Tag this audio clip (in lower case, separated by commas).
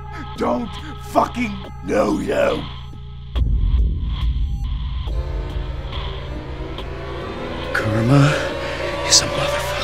music, speech